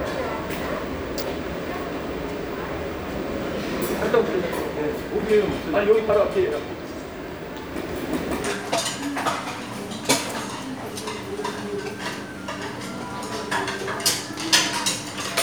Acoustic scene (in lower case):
restaurant